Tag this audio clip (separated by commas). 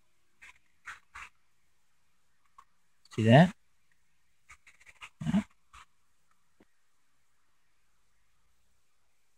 Speech, inside a small room